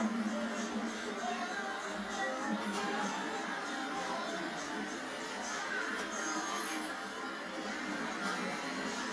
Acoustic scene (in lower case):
bus